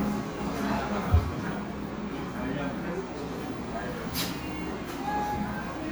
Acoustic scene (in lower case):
cafe